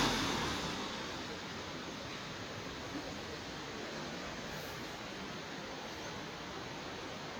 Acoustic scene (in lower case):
residential area